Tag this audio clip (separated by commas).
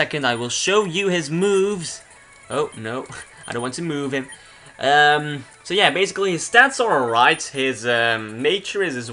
Speech